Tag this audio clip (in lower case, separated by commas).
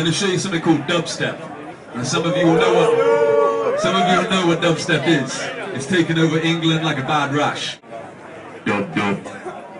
speech